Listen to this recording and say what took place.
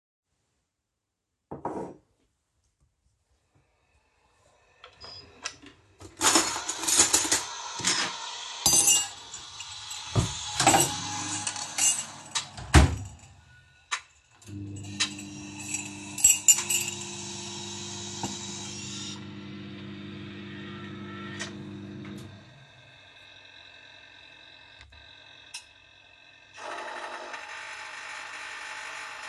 I am getting a cup and making coffe. I am also microwaving a dish and getting a spoon out of a drawer for my coffee.